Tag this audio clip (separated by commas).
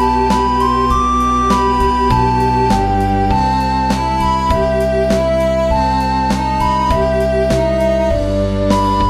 Musical instrument, Music